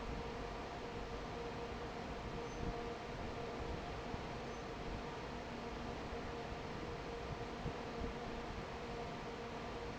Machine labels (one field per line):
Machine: fan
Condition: normal